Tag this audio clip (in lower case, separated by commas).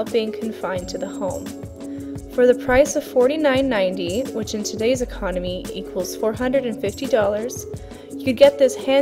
music, speech